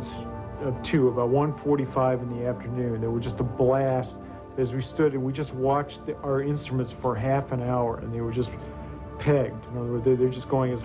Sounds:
speech, music

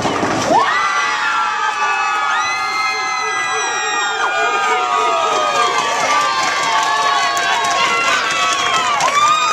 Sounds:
cheering, people crowd, crowd

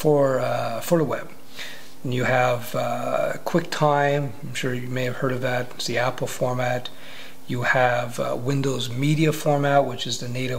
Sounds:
speech, inside a small room

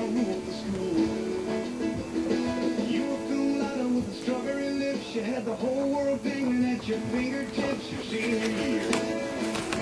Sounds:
music, inside a small room

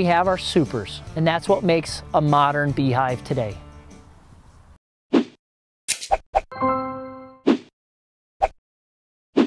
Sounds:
music, speech, plop

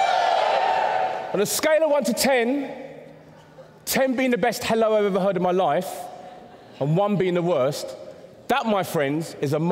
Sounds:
inside a large room or hall, speech

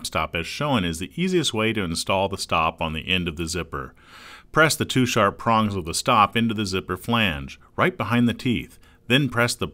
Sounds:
speech

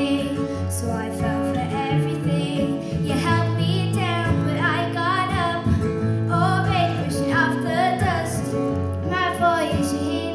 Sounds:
music, child singing

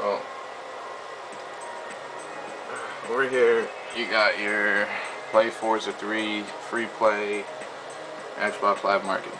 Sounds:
music, speech

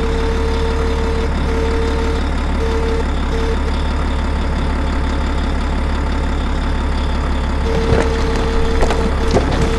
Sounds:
truck

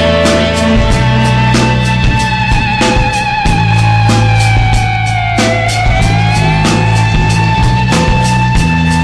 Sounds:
music

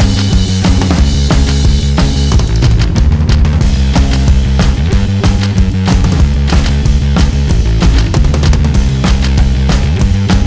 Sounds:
music

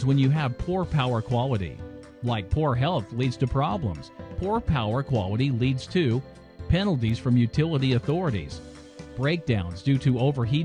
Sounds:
speech, music

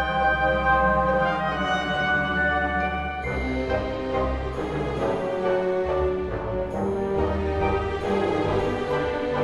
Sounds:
music

